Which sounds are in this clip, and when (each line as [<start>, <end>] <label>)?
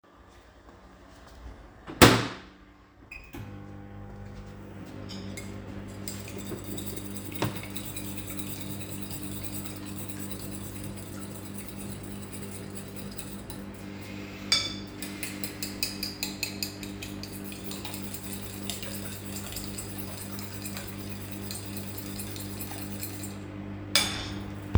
[3.09, 24.78] microwave
[5.10, 24.66] cutlery and dishes